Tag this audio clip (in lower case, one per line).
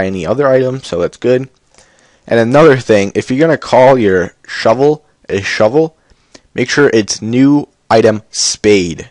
speech